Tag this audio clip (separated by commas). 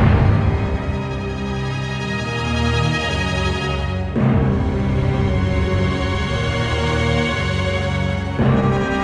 Scary music, Music